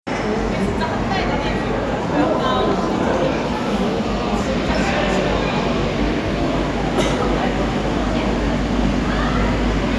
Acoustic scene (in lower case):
crowded indoor space